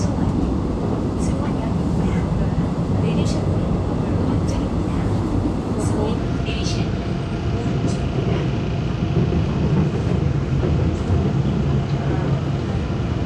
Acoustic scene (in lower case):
subway train